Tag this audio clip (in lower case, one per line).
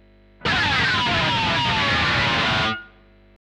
plucked string instrument
electric guitar
musical instrument
music
guitar